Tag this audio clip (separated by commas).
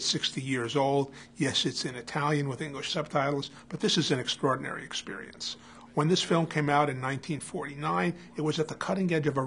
Speech